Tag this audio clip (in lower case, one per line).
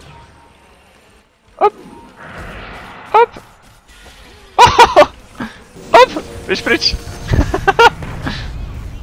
speech